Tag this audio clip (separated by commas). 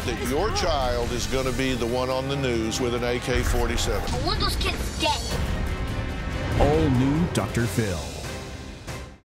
Speech, Music